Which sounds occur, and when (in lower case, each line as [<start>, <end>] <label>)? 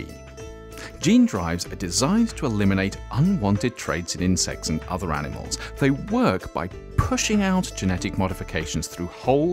[0.00, 9.52] music
[0.70, 0.93] breathing
[1.00, 2.88] male speech
[3.09, 3.65] male speech
[3.77, 4.49] male speech
[4.62, 5.51] male speech
[5.55, 5.72] breathing
[5.77, 6.42] male speech
[6.54, 6.81] male speech
[6.96, 7.63] male speech
[7.79, 9.05] male speech
[9.17, 9.52] male speech